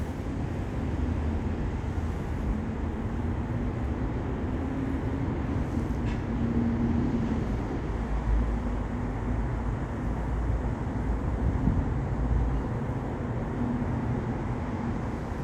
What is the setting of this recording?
residential area